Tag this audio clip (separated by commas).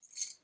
Keys jangling, Domestic sounds